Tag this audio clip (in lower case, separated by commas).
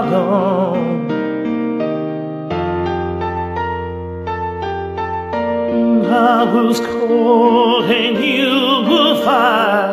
male singing, music